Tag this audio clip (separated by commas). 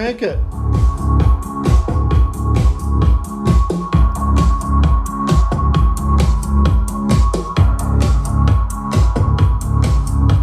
Speech, Music, Television